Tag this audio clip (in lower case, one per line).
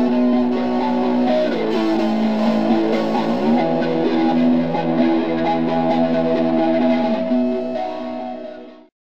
music